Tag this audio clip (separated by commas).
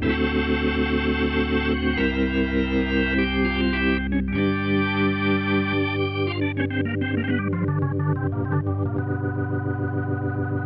playing hammond organ